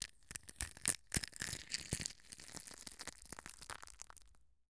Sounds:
Crushing

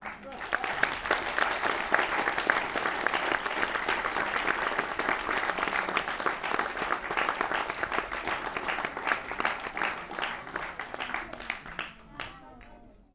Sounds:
Applause, Human group actions

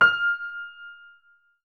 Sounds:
Keyboard (musical), Music, Musical instrument, Piano

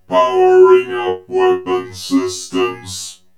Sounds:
Speech, Human voice

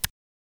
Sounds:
Tick

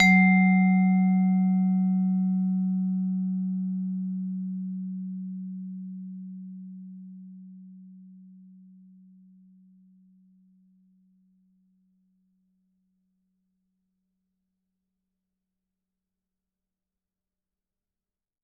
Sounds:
Percussion, Musical instrument, Mallet percussion, Music

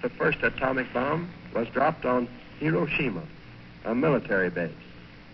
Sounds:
Speech, Human voice

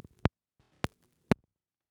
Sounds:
Crackle

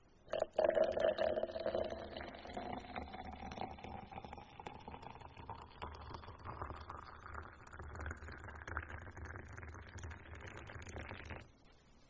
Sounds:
Liquid

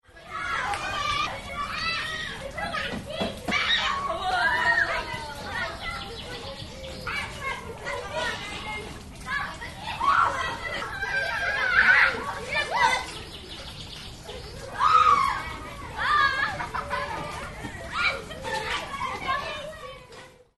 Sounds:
Human group actions

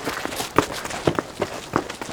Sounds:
Run

